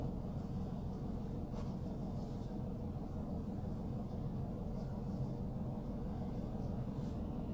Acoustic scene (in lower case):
car